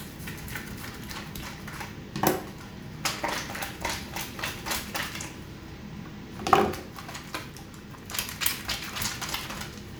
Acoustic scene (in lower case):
restroom